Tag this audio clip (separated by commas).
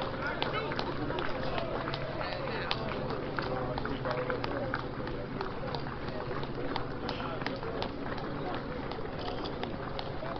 people running, Run, Speech, outside, urban or man-made